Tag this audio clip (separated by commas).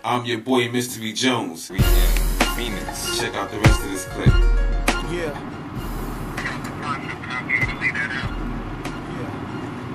Music, Speech